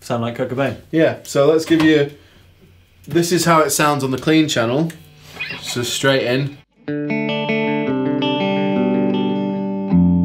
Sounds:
Musical instrument, Plucked string instrument, inside a small room, Music, Speech, Guitar

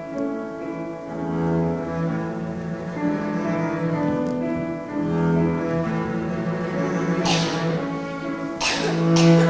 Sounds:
Music, playing cello, Cello

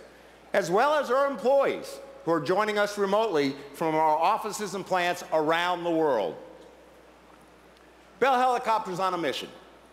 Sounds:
Speech

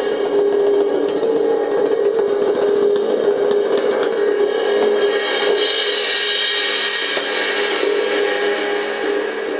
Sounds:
playing cymbal

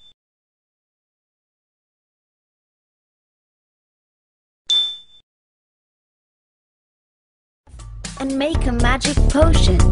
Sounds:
Silence, Music, Speech

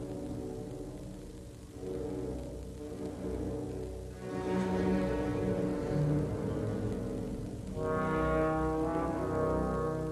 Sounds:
Bowed string instrument, Brass instrument, Trombone, Orchestra, Musical instrument, Music

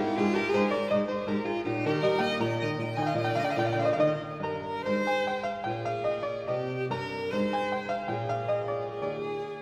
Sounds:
fiddle, Music, Musical instrument

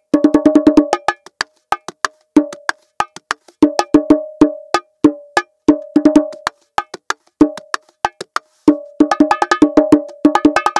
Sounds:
playing bongo

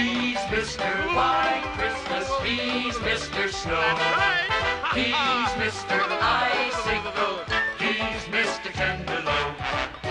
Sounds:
Music, Speech

